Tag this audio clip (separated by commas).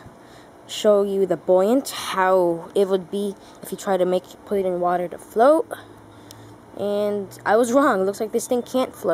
Speech